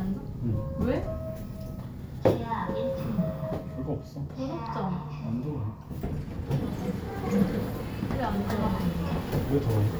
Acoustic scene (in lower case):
elevator